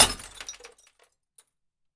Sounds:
Glass

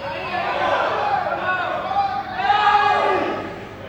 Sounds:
Cheering, Shout, Human voice, Human group actions

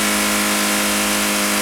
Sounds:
Vehicle

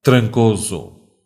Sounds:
Human voice

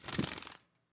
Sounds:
Animal, Bird, Wild animals

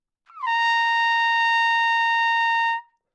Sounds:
Trumpet, Musical instrument, Music, Brass instrument

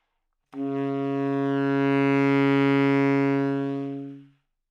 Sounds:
woodwind instrument, Musical instrument, Music

